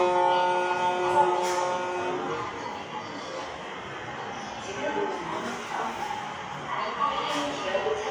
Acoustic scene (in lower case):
subway station